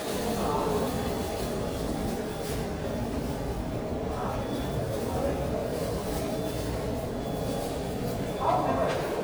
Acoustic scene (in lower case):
subway station